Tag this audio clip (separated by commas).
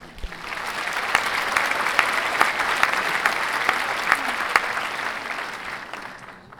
Applause, Human group actions, Crowd